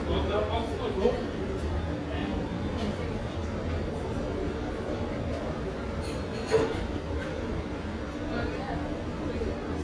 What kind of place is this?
restaurant